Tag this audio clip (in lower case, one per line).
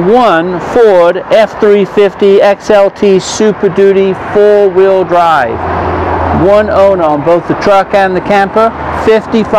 speech
vehicle